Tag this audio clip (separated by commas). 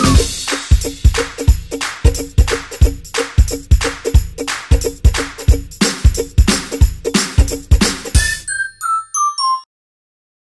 Music